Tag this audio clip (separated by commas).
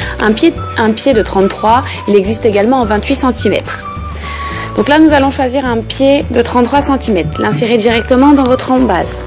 Music, Speech